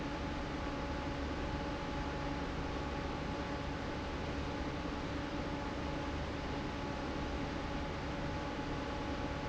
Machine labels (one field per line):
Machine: fan